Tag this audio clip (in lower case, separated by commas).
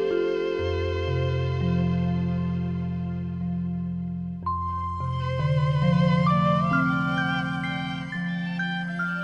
musical instrument, music, violin